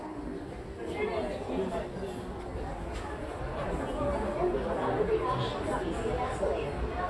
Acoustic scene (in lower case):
crowded indoor space